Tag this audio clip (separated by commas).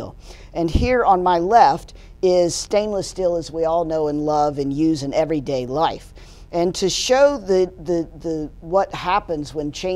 Speech